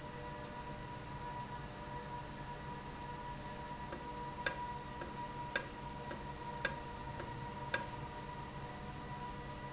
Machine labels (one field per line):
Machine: valve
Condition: normal